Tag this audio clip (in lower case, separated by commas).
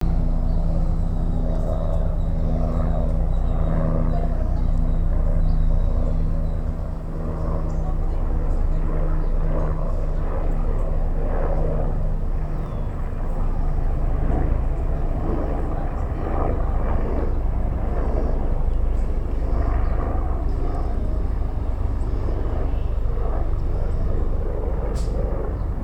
aircraft, vehicle